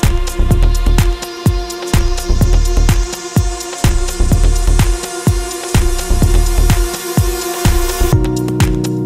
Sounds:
music
soundtrack music

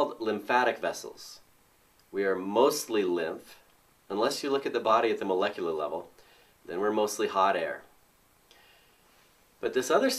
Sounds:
speech

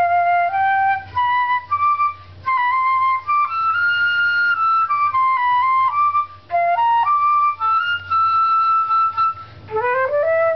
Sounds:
playing flute
music
flute

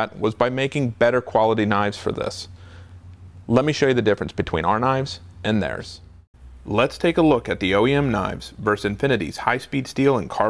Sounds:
speech

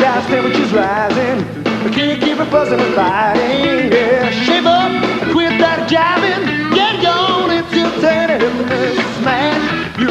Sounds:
music

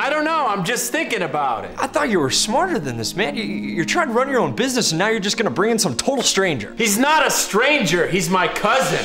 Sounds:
music
speech

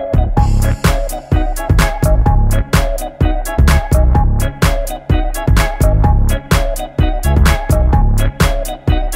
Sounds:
music

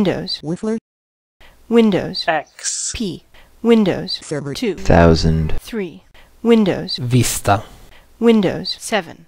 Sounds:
speech
speech synthesizer

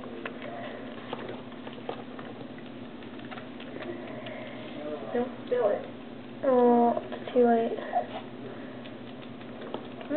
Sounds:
speech

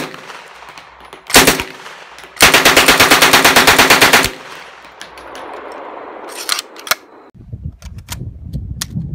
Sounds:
machine gun shooting

